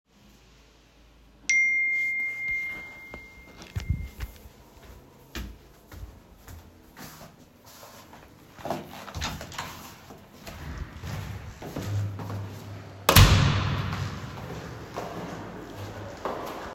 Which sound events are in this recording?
phone ringing, footsteps, door